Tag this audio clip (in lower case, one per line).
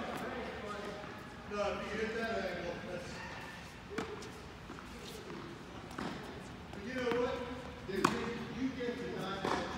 playing tennis